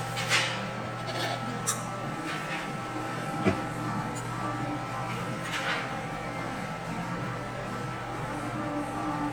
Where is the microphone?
in a cafe